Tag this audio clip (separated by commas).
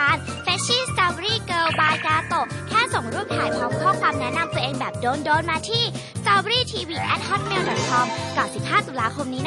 Speech, Music